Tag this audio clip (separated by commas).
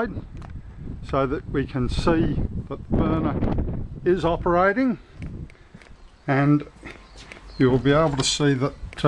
Speech